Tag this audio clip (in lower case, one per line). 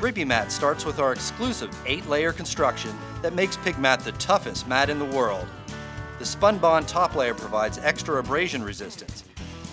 music
speech